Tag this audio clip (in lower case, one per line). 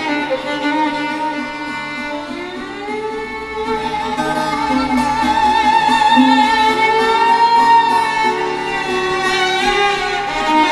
musical instrument
violin
music